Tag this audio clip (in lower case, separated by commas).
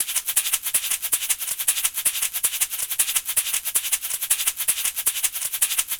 percussion, music, rattle (instrument), musical instrument